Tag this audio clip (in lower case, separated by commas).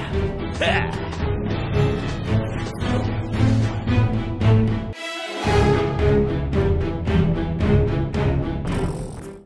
speech, music